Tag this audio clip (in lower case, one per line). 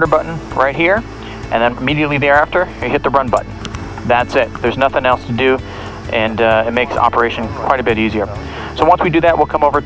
speech
music